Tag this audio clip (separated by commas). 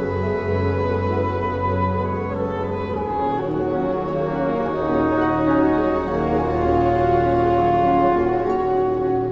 Music